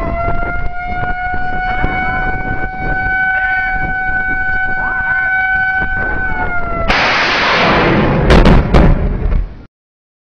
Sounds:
speech

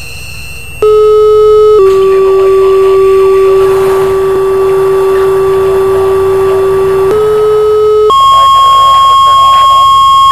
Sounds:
speech

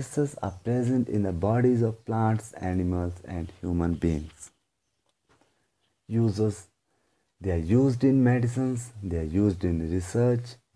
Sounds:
speech

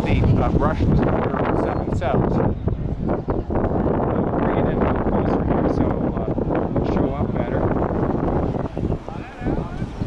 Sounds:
water vehicle, speech, vehicle, speedboat, ship, sailboat

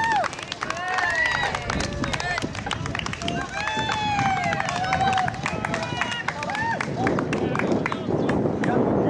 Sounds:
speech, people running, run

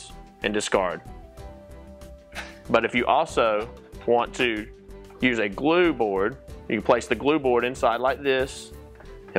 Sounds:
music, speech

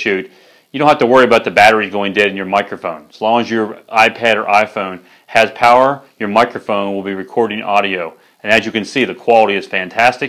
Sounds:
speech

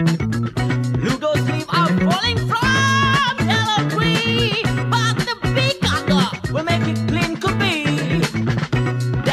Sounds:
music

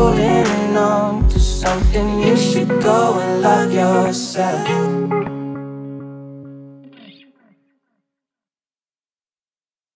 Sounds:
music, electronic tuner

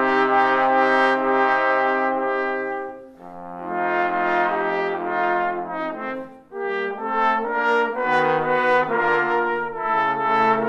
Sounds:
music, trumpet, french horn, trombone

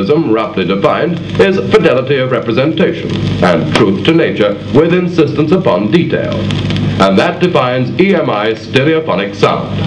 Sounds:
male speech, speech

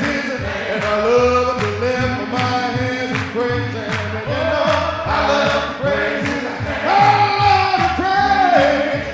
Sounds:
music

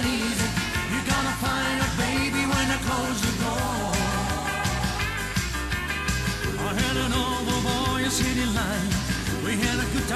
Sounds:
music

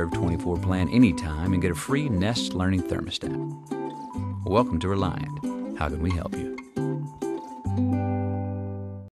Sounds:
music, speech, jingle (music)

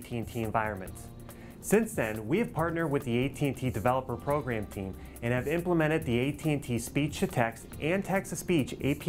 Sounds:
music, narration, man speaking, speech

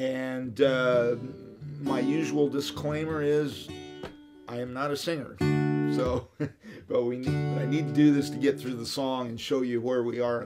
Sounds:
plucked string instrument, musical instrument, speech, music, guitar

